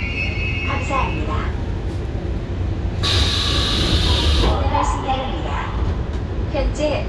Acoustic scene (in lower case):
subway train